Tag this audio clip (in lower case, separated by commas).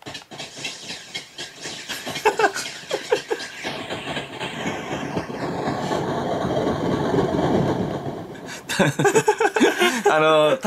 effects unit, speech